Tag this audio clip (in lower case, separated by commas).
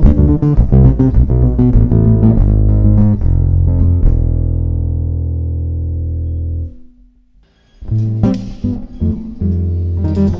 music, musical instrument